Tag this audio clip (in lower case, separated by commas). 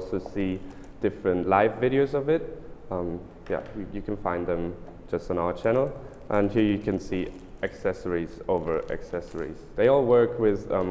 speech